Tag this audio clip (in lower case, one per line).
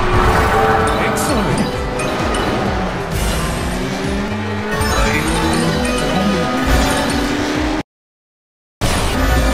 music
speech